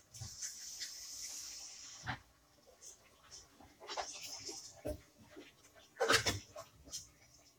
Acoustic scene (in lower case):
kitchen